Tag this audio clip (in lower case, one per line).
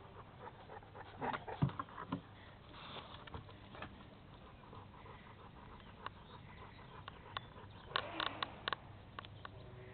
dog